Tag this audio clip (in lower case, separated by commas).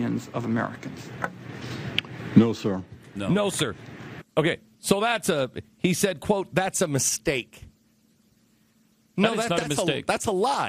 speech